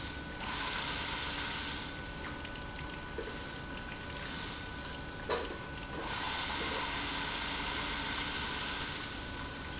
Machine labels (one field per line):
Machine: pump